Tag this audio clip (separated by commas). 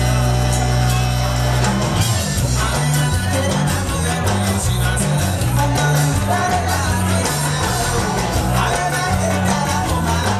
Exciting music, Music